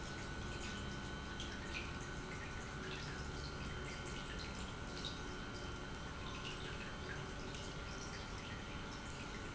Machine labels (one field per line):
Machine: pump